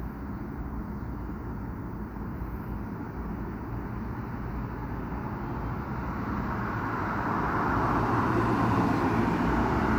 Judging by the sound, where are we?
on a street